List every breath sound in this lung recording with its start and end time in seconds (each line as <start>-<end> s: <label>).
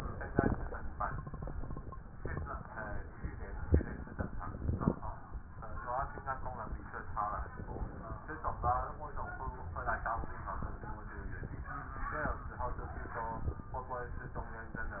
7.50-8.26 s: inhalation